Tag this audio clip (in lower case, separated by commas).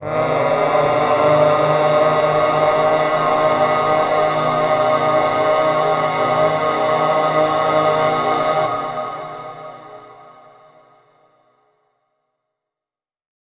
human voice, singing, musical instrument, music